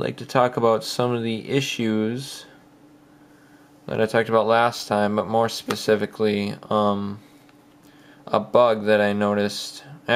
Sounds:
Speech

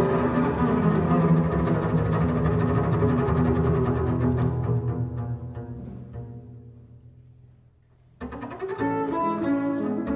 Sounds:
Double bass, Classical music, Cello, Violin, Music, Bowed string instrument, Musical instrument

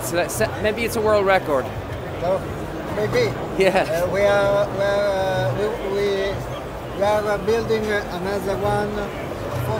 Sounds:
Speech

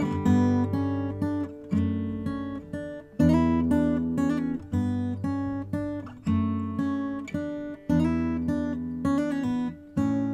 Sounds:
Acoustic guitar, Music

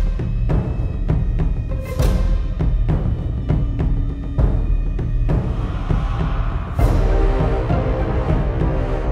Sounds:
Music

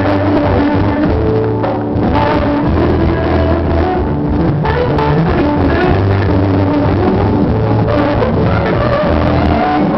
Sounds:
Music, Musical instrument, Plucked string instrument, Electric guitar

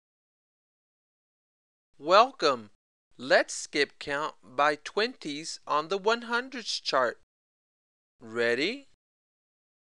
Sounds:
Speech

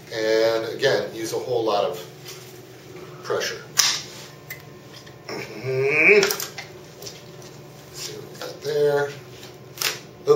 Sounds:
inside a small room, Speech

